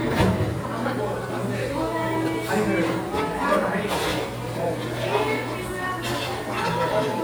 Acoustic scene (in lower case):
cafe